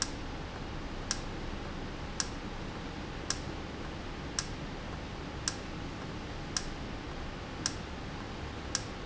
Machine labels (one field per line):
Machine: valve